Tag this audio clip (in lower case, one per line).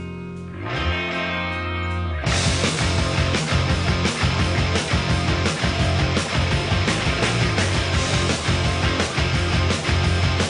music